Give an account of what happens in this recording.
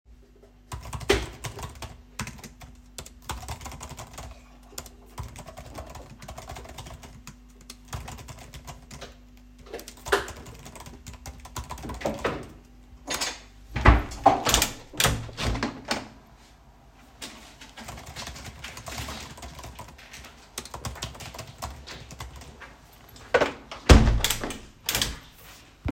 I typed on the keyboard for a few seconds and then opened the window. I continued typing for a moment and then closed the window again.